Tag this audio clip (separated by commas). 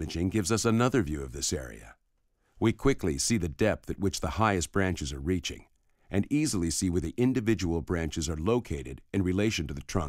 Speech